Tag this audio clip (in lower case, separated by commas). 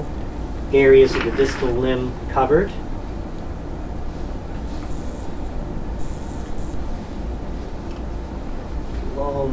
speech, inside a small room